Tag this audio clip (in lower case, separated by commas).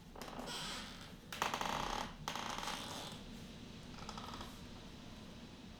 squeak